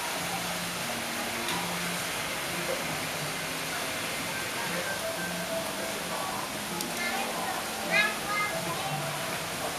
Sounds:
Speech

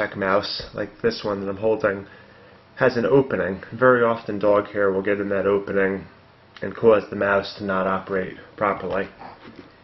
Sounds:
Speech

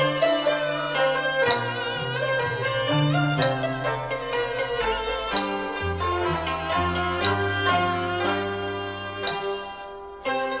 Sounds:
Music, Soul music

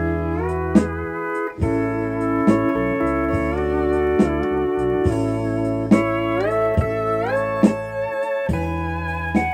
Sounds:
slide guitar, Music, Musical instrument, Plucked string instrument, Guitar

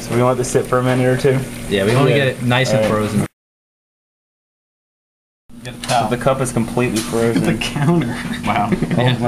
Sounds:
Speech

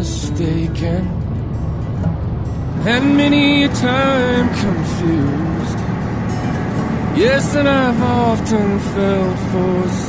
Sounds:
Music, Truck

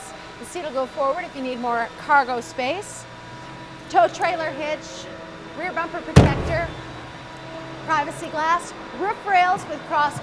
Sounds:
Speech

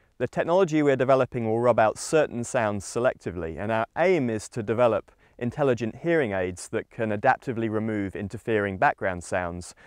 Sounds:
Speech

